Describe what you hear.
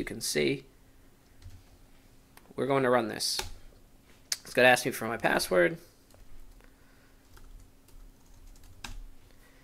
A man is talking and typing on a keyboard